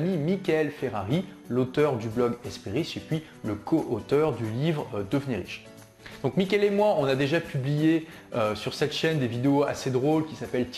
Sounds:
Speech, Music

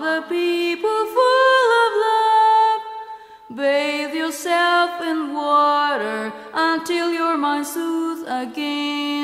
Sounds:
Music

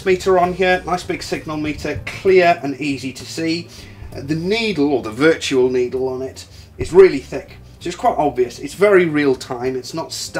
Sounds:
Speech

